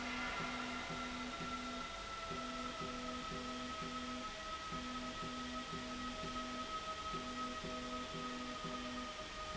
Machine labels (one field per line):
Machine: slide rail